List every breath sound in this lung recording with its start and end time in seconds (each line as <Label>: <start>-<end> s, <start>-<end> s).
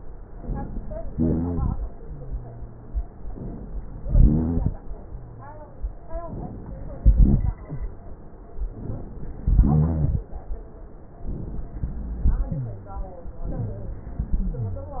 Inhalation: 0.36-1.08 s, 3.34-4.02 s, 6.32-7.02 s, 8.82-9.45 s
Exhalation: 1.08-1.76 s, 4.02-4.73 s, 7.02-7.59 s, 9.47-10.29 s
Rhonchi: 1.08-1.76 s, 4.02-4.73 s, 7.02-7.59 s, 9.47-10.29 s